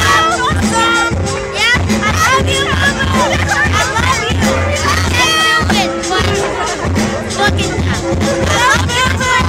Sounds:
Music, Speech

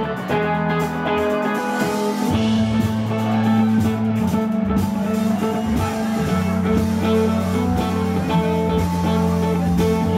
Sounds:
Plucked string instrument, Musical instrument, Acoustic guitar, Music

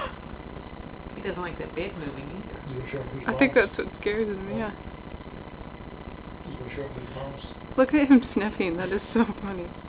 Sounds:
Speech

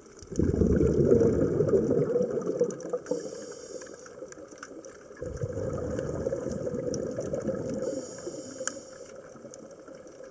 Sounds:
scuba diving

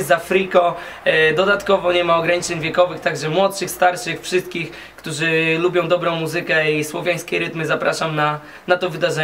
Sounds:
Speech

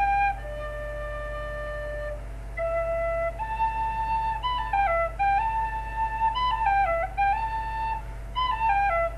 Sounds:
Whistle

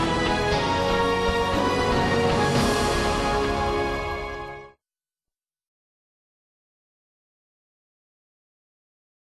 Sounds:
Television, Music

